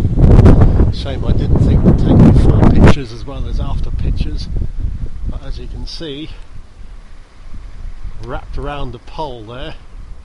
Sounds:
Speech

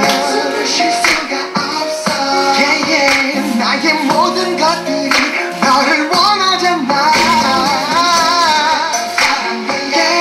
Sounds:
Music

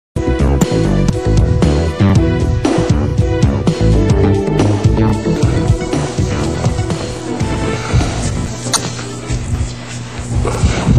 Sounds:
Trance music

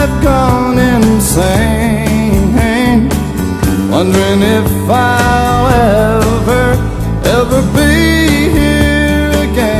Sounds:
Music

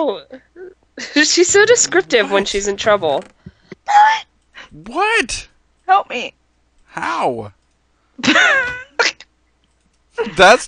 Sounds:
Speech

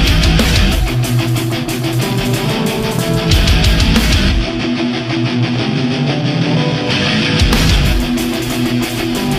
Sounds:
Music, Angry music

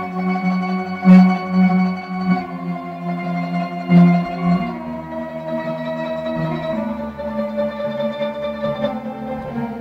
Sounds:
Music, inside a small room

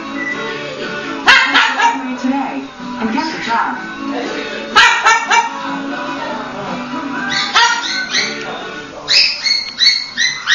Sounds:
Animal, Music, pets, Bow-wow, Speech

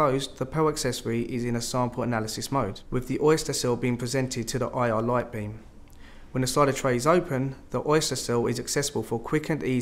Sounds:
Speech

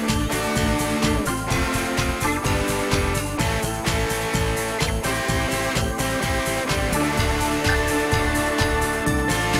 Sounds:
Music

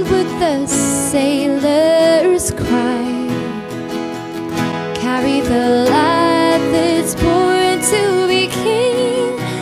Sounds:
Music

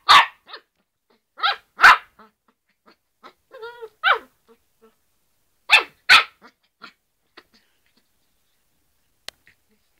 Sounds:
Bow-wow, Bark, dog bow-wow, pets, Dog, Animal

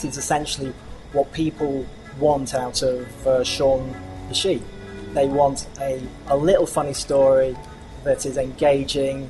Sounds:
Speech, Music

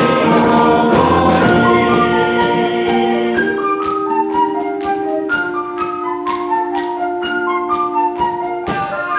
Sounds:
Music, Choir

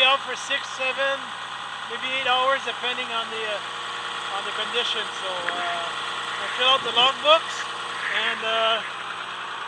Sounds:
Speech

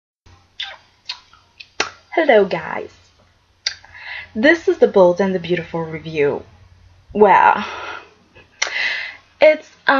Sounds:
Speech, inside a small room

